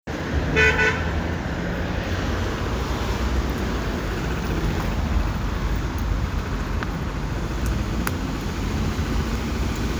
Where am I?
in a residential area